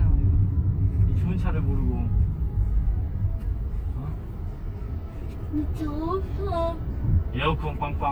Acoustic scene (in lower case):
car